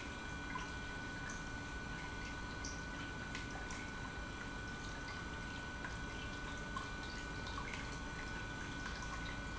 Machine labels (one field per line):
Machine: pump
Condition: normal